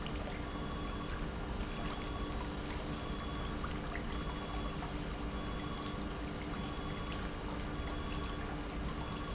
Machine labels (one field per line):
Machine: pump